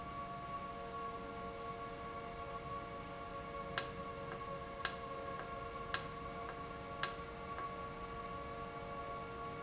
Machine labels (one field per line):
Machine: valve